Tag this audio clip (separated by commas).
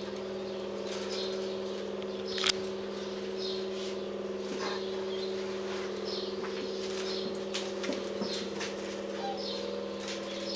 Animal, Bird